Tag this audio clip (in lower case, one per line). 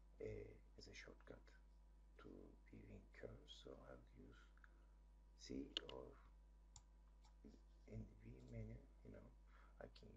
speech